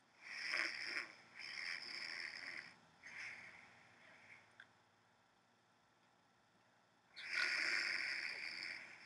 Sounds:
inside a small room

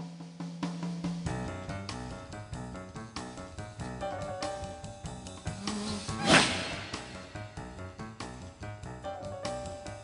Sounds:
music

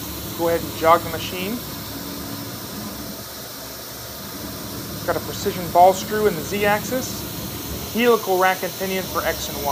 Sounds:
speech

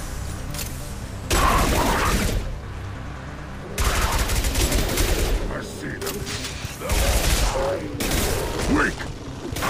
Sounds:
speech

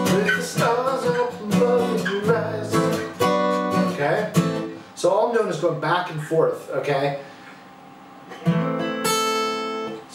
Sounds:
guitar, plucked string instrument, music, acoustic guitar, strum, musical instrument, speech

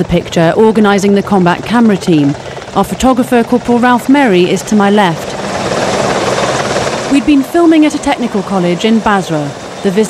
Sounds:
speech

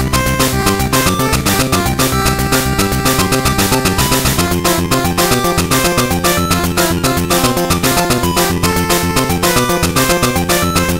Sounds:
soundtrack music, music

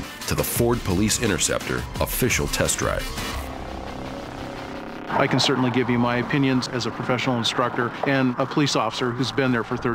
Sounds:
speech, music

